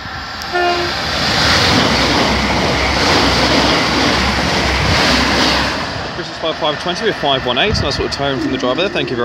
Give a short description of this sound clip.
Sharp honk noise and steam engine whooshing sound as man speaks in the foreground